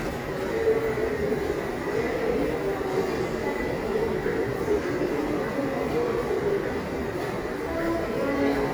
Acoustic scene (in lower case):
subway station